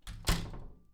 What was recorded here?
wooden door closing